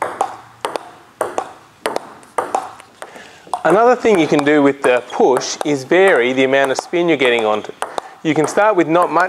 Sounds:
playing table tennis

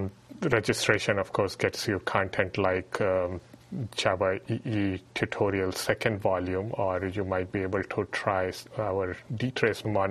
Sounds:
Speech

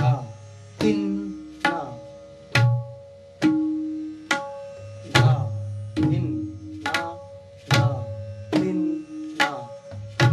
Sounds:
playing tabla

